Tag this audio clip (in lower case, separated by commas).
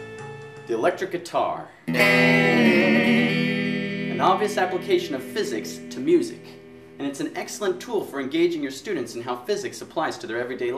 strum, plucked string instrument, electric guitar, musical instrument, music, speech, guitar